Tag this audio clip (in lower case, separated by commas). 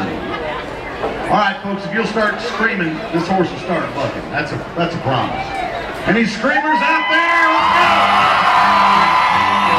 music, speech